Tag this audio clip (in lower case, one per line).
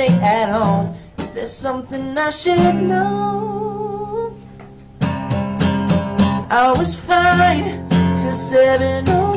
music
male singing